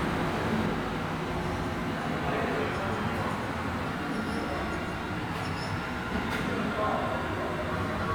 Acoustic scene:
subway station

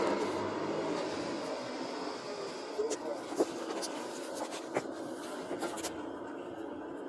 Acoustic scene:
car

